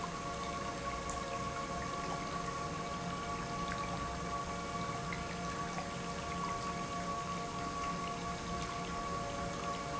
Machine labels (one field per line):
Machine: pump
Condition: normal